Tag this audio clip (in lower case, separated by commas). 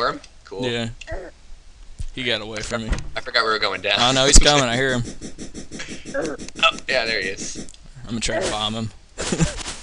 speech